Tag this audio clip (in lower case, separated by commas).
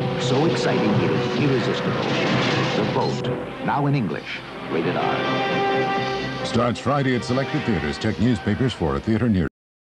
music, speech